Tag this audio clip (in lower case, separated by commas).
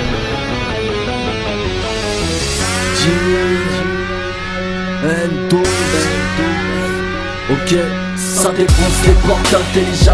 pop music, exciting music, music